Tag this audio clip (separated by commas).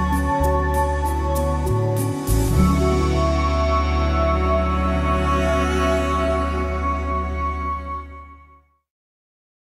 Music